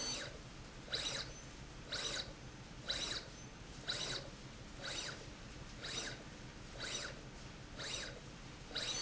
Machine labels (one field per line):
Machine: slide rail